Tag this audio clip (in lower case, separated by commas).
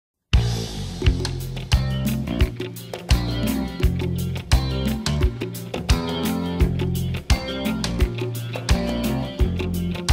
music